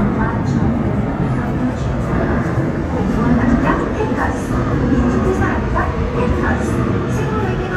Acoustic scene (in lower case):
subway station